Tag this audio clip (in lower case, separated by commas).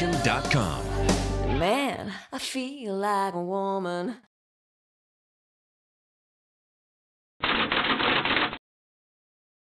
speech, music